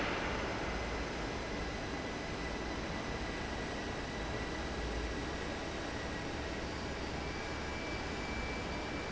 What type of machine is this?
fan